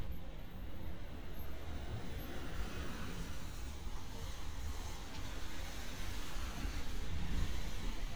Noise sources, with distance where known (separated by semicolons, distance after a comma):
background noise